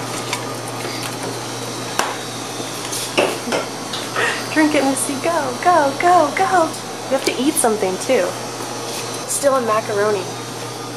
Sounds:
inside a small room
speech

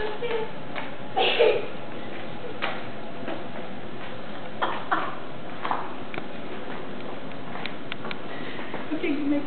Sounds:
speech
walk

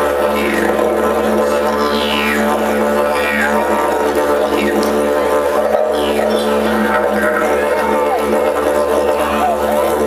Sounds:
playing didgeridoo

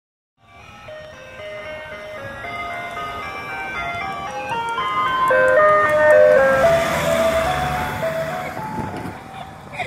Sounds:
music
ice cream truck
vehicle
motor vehicle (road)

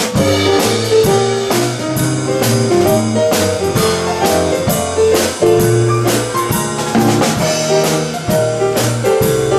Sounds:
music

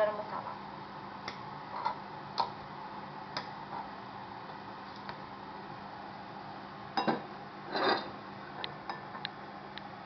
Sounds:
speech

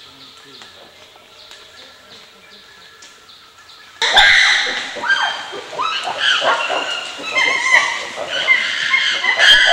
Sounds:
chimpanzee pant-hooting

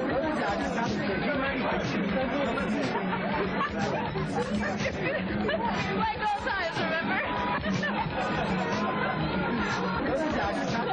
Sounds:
inside a large room or hall
music
speech

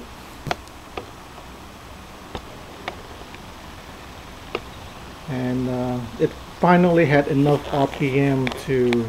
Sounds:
speech

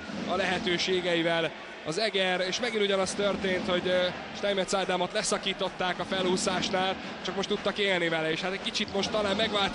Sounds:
speech
music

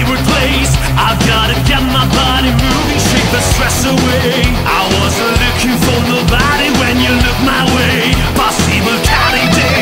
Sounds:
music

